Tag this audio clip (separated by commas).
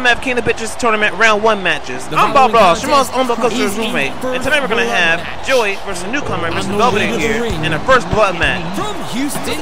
Speech